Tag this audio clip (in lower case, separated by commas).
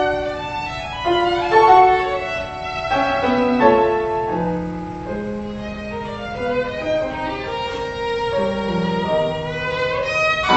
musical instrument, playing violin, music, fiddle